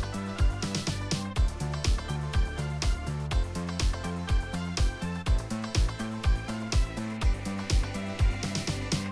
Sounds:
Music

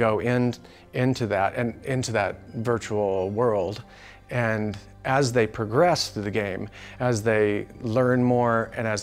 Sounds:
Speech, Music

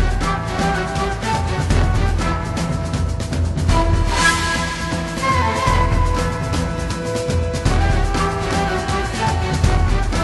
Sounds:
Music, Video game music

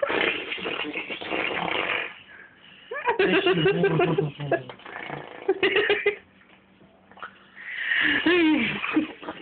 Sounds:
Speech

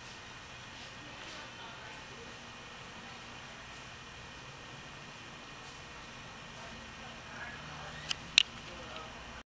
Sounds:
Speech

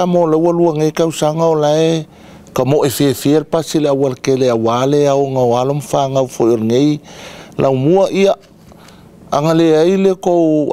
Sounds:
Speech

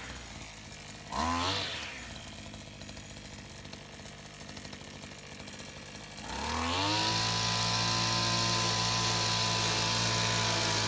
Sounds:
Tools, Power tool

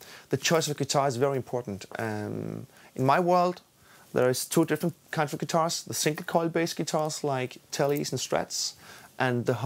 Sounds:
Speech

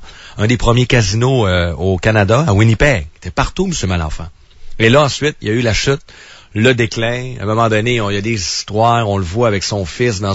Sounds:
Speech

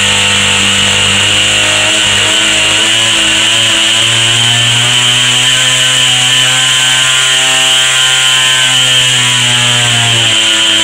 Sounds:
Engine, vroom

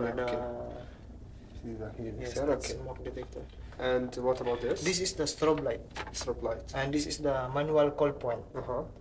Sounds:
Speech

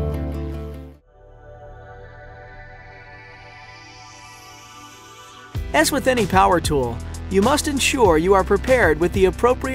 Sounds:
Music, Speech

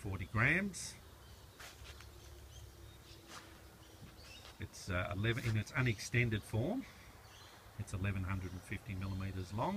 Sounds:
Speech

